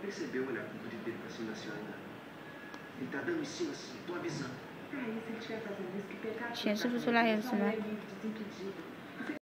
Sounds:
vehicle
speech

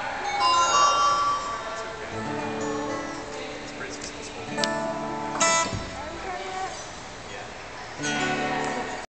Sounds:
strum
plucked string instrument
music
speech
acoustic guitar
guitar
musical instrument

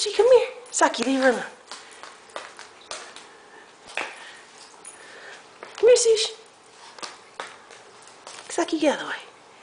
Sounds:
speech

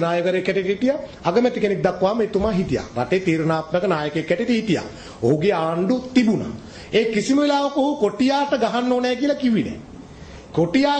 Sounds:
speech
man speaking
narration

